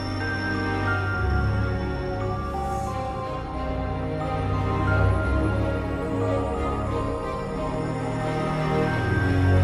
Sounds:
Music

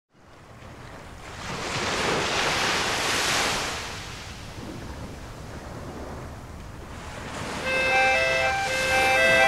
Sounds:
Ocean, outside, rural or natural, Music

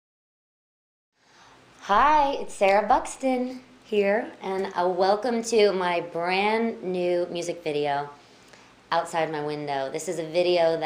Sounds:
Speech

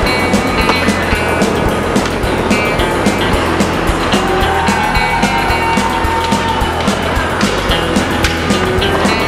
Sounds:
Skateboard, Music

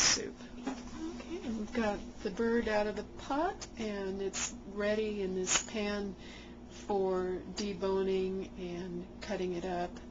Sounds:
Speech

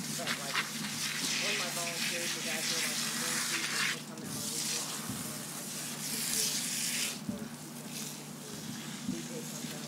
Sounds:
Speech

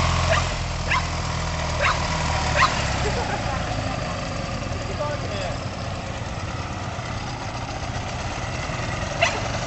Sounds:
Bow-wow, Animal, Vehicle, pets, Speech, Motorcycle, Dog

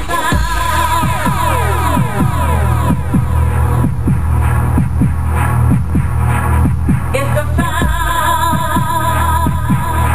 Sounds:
Music

